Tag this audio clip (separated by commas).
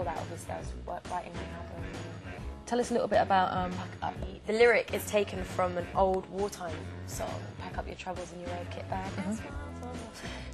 Music, Speech